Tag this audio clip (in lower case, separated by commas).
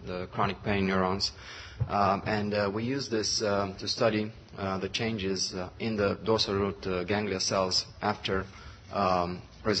speech